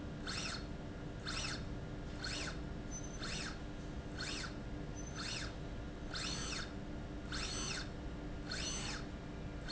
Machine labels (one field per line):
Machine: slide rail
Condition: normal